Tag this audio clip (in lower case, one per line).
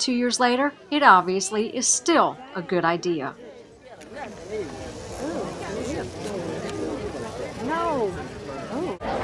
speech
outside, urban or man-made